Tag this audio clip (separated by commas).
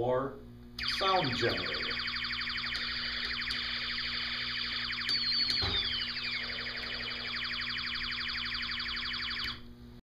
Speech